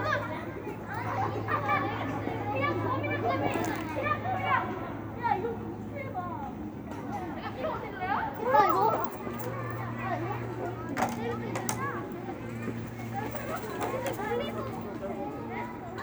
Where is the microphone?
in a residential area